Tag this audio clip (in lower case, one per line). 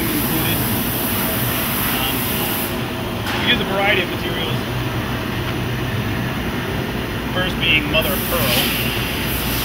speech